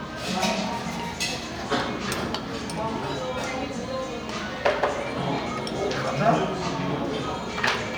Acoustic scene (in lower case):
cafe